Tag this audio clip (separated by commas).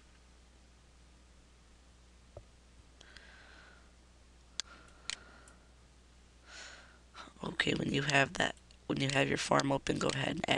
Speech